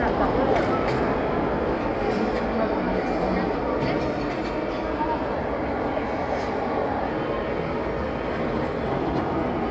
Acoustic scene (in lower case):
crowded indoor space